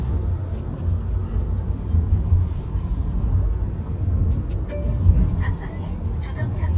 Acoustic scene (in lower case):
car